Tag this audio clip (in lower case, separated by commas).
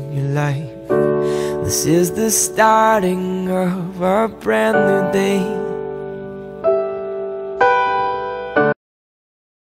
music